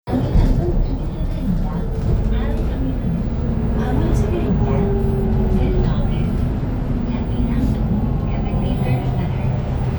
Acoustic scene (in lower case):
bus